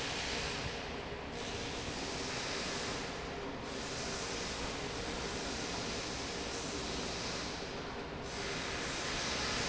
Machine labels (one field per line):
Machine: fan